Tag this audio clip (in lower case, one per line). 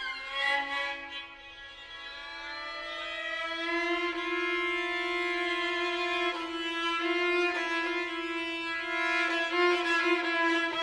fiddle
music